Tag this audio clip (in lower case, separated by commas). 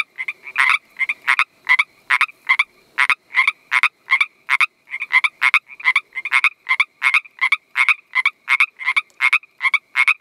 frog croaking